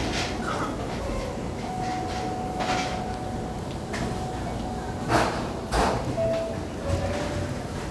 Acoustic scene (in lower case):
restaurant